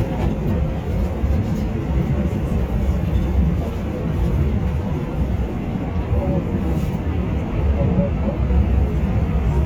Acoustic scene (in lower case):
subway train